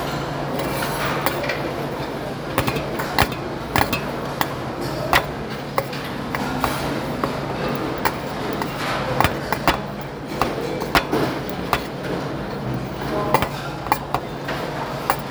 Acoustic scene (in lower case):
restaurant